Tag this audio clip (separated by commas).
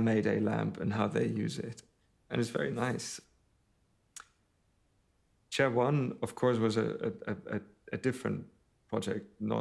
Speech